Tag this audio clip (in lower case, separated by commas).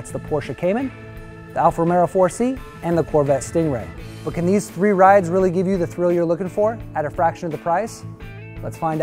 music, speech